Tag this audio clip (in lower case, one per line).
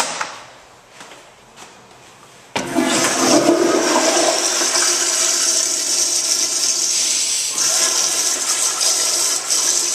toilet flushing
toilet flush